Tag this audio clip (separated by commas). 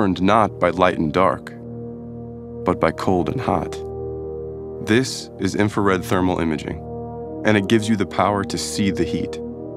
Speech, Music